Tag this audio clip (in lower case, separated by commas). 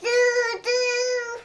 speech, human voice